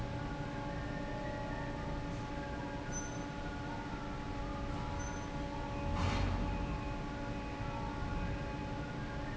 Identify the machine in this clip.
fan